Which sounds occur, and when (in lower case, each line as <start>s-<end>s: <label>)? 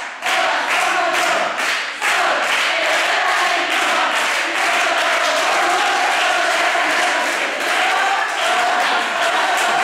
0.0s-9.8s: crowd
0.0s-9.8s: choir
0.2s-0.4s: clapping
0.6s-0.9s: clapping
1.1s-1.5s: clapping
1.6s-1.8s: clapping
2.0s-2.2s: clapping
2.4s-2.8s: clapping
2.8s-9.8s: applause